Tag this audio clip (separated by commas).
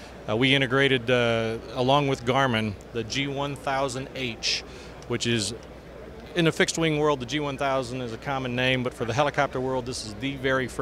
Speech